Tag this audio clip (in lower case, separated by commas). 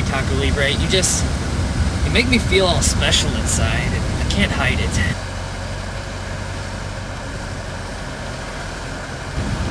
outside, urban or man-made, speech, vehicle, car